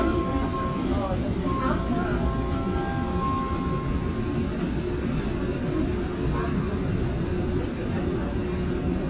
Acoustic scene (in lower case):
subway train